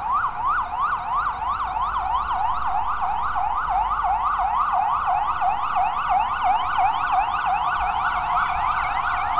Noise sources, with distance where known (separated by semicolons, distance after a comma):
siren, near